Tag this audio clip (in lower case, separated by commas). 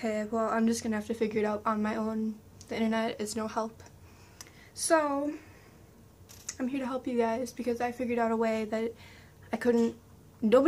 speech